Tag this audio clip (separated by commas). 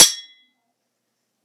Cutlery, Domestic sounds